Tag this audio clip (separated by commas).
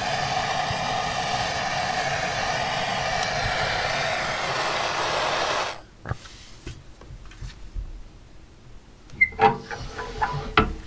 blowtorch igniting